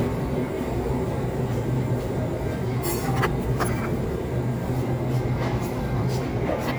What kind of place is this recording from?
crowded indoor space